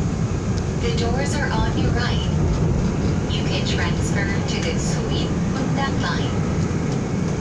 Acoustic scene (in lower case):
subway train